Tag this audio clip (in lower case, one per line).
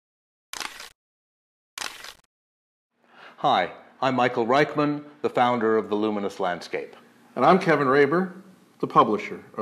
speech
single-lens reflex camera